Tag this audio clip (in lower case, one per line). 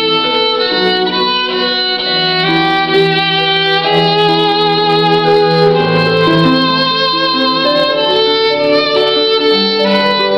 music
fiddle
musical instrument